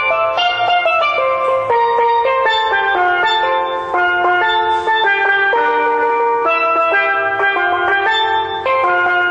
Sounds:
Music

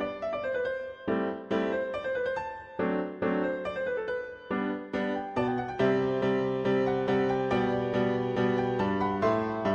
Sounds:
Musical instrument, Music, Pizzicato

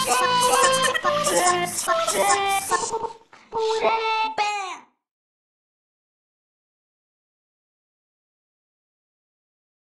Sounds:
Music

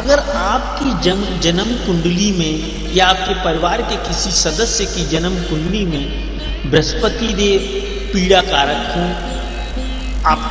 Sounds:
Speech, Music

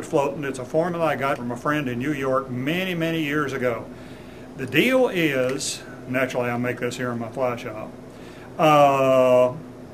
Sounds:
Speech

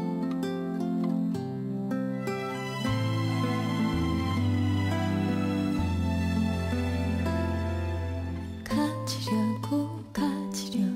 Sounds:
Music, Tender music

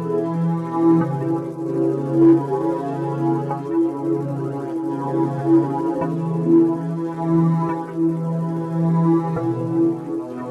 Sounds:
Music

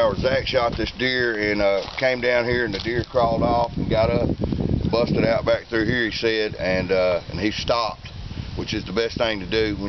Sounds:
Speech

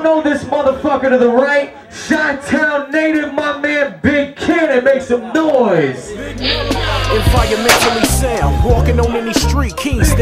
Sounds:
Music, Speech

